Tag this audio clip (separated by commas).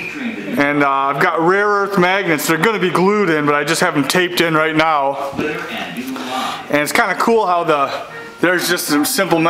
Speech